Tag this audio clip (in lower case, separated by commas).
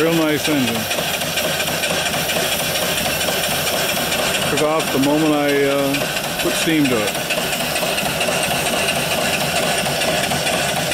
engine, speech